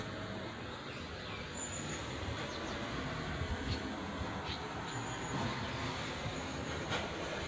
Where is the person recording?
in a residential area